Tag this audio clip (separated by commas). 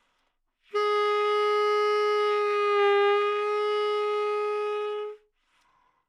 Musical instrument, Wind instrument, Music